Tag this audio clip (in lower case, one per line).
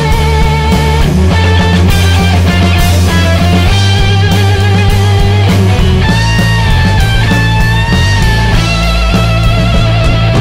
music
heavy metal